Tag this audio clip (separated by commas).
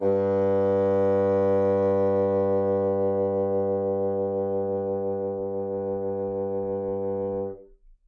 Music, Musical instrument, Wind instrument